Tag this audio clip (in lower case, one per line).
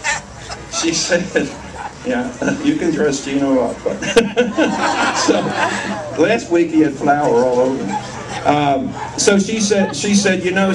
speech